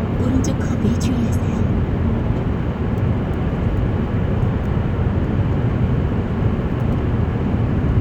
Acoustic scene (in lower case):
car